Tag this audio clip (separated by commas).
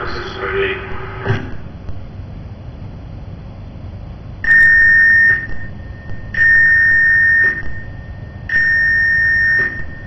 Speech